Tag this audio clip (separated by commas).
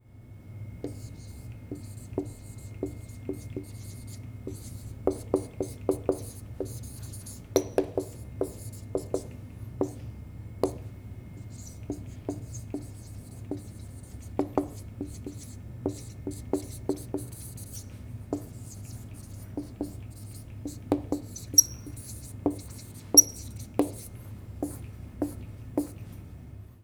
home sounds, Writing